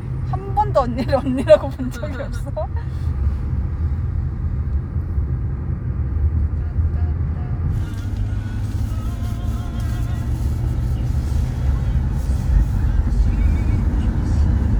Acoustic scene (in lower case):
car